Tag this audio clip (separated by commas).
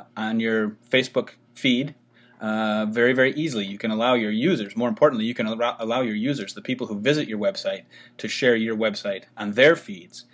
Speech